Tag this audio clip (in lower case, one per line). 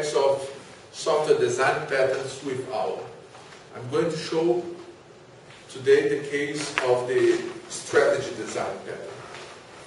speech